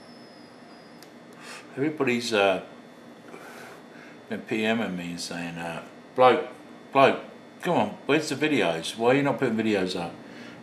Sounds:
Speech, inside a small room

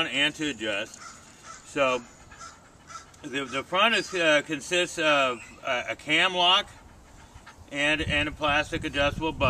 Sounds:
Animal, outside, rural or natural, Speech

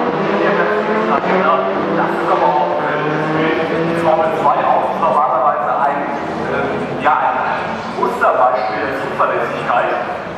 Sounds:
Vehicle, Car, Speech

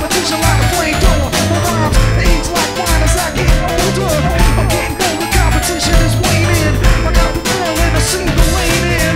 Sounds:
Music

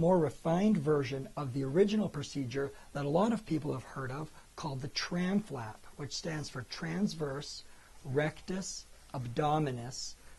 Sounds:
Speech

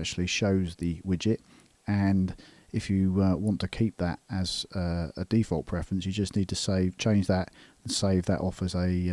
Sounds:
Speech

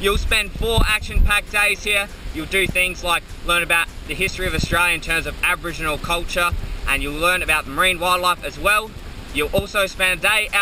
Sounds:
Wind, Wind noise (microphone)

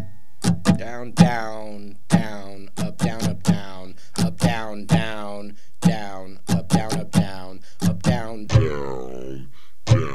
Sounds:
Plucked string instrument, Musical instrument, Guitar, Music, inside a small room, Acoustic guitar

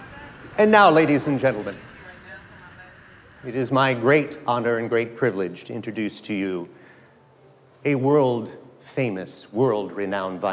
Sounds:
Speech

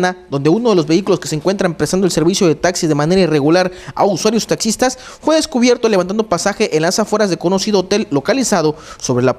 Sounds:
Speech

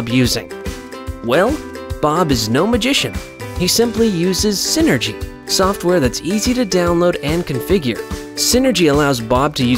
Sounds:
Speech, Music

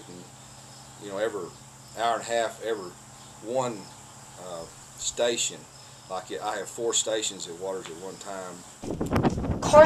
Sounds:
Speech

